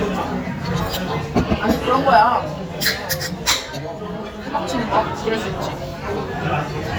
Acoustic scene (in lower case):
crowded indoor space